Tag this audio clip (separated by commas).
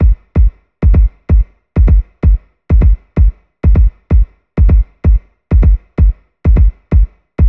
Drum, Bass drum, Musical instrument, Percussion, Music